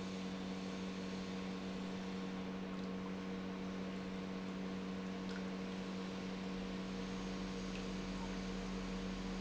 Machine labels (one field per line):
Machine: pump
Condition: normal